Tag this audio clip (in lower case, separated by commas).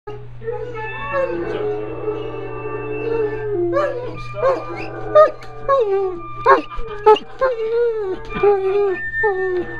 howl, canids, speech, dog, music, animal, pets